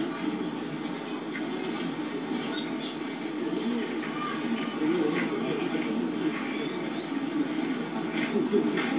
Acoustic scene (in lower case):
park